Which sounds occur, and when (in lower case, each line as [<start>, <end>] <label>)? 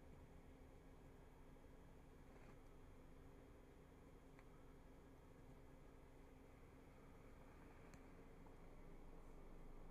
[0.00, 9.90] background noise
[2.28, 2.54] generic impact sounds
[4.33, 4.42] tick
[7.87, 7.98] tick